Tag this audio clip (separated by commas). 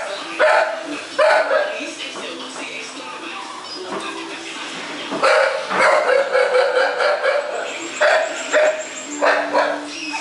Dog, Speech, dog bow-wow, Music, Domestic animals, Bow-wow, Animal